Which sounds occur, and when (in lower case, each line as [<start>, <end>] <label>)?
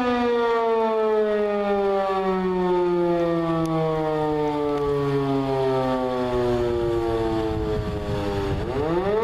[0.00, 9.23] wind
[0.01, 9.23] siren
[6.17, 9.23] wind noise (microphone)